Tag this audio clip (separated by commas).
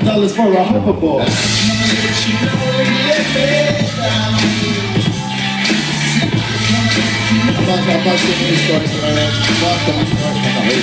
Speech, Music